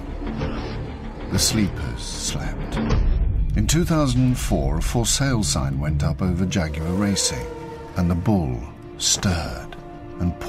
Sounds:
music, speech

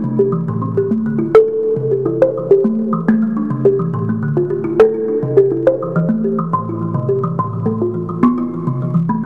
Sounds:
musical instrument, music

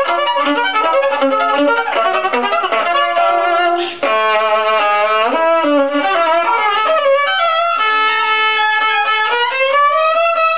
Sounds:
bowed string instrument, fiddle

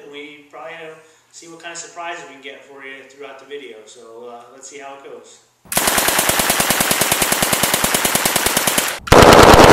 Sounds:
speech, outside, rural or natural, inside a small room

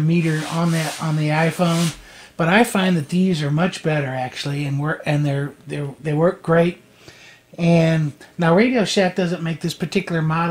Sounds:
speech

